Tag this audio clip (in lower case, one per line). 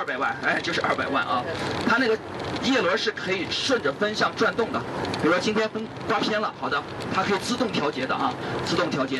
wind noise (microphone)
wind